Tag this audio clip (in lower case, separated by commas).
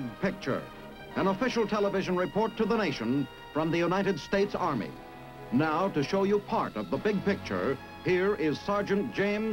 music, speech